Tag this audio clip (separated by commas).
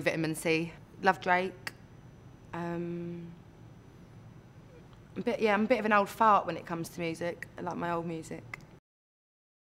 Speech